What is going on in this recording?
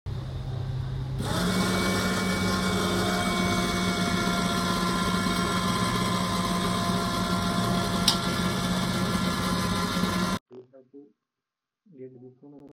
I started the coffee machine for my evening coffee and meanwhile I was adjusting the shoe cabinet.